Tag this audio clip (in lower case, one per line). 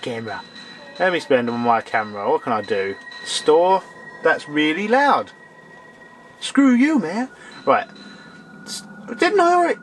speech